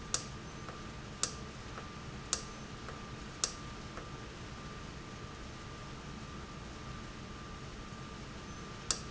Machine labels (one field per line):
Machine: valve